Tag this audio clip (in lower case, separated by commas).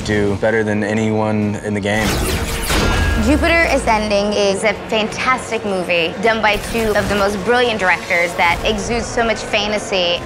music, speech